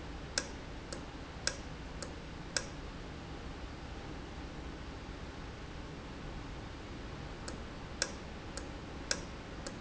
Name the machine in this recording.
valve